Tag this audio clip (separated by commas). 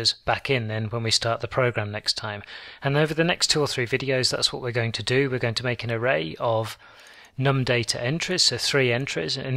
Speech